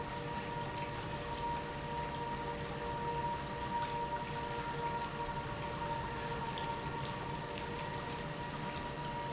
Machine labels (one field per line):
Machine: pump